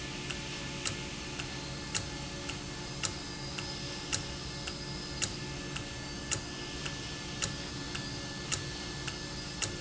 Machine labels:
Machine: valve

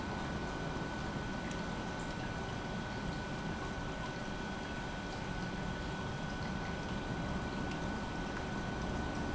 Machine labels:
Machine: pump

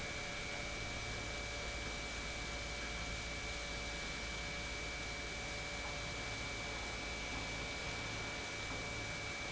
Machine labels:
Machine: pump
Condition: normal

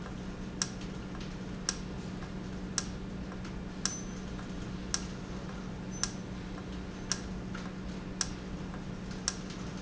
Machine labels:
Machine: valve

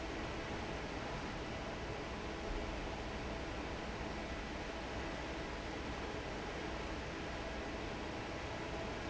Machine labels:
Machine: fan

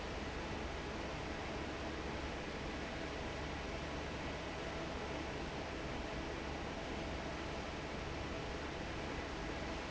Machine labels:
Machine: fan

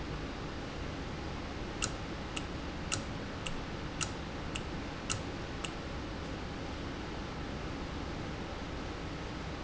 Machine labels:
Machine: valve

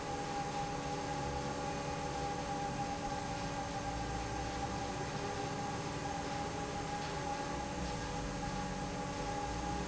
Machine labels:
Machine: fan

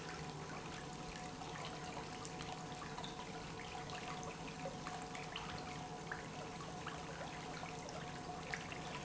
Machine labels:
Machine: pump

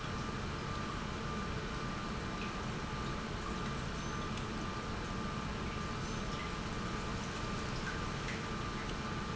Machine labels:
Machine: pump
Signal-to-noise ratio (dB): -6 dB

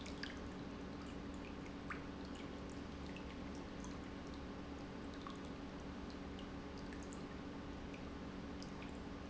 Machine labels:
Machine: pump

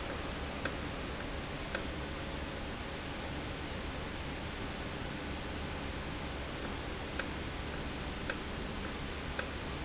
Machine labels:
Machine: valve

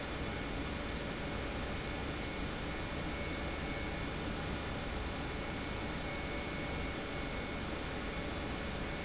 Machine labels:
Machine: pump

